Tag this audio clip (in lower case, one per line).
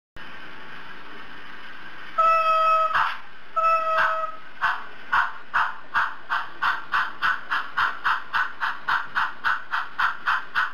rail transport
train
train wagon